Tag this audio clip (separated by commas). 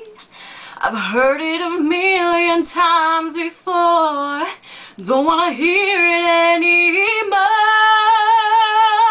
Female singing